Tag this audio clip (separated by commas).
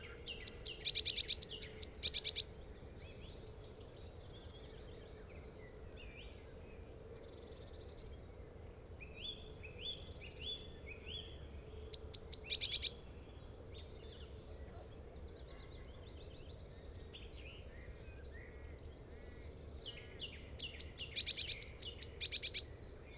bird call, Animal, Bird, Wild animals